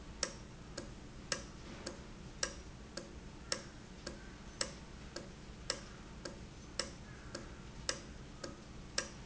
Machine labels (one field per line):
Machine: valve